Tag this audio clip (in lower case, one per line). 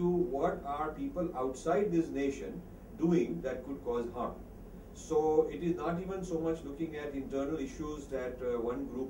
speech